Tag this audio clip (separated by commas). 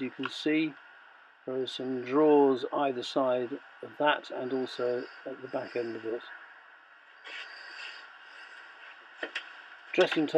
Speech